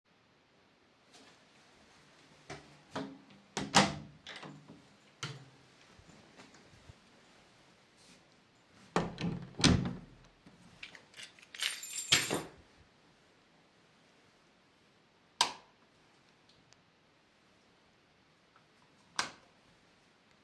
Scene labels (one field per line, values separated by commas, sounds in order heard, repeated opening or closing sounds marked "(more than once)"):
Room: living room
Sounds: door (more than once), keys, light switch